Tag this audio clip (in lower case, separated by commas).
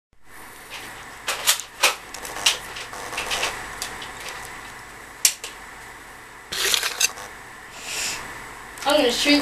speech, inside a small room